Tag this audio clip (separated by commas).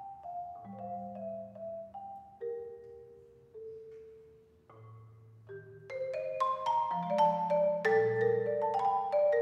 Mallet percussion, playing marimba, xylophone, Glockenspiel